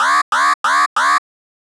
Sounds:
alarm

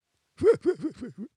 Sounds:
human voice, laughter

